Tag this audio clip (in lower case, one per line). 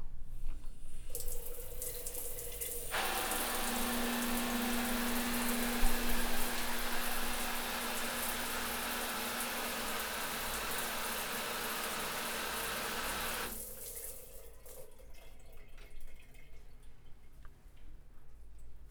water tap
pour
bathtub (filling or washing)
home sounds
liquid
dribble